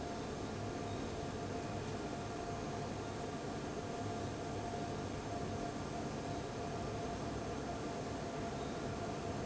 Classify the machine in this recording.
fan